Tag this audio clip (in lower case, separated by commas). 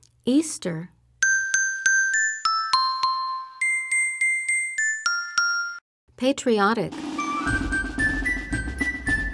tick-tock, speech, music